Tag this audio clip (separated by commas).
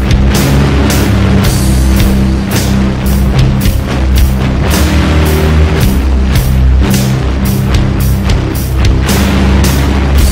Background music, Music